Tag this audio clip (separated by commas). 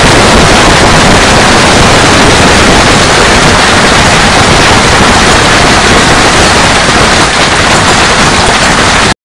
Rain